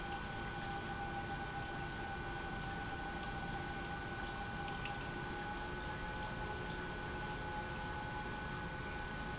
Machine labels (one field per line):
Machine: pump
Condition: normal